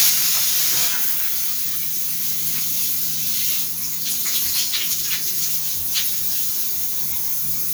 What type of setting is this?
restroom